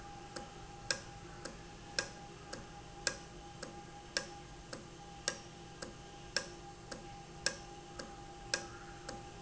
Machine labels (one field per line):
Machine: valve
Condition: normal